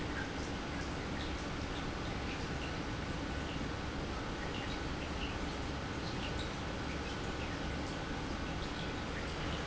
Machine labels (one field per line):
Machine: pump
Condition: normal